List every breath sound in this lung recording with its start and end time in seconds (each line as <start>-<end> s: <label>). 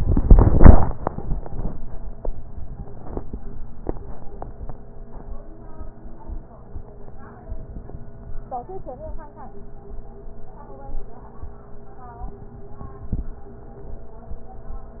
3.18-4.43 s: inhalation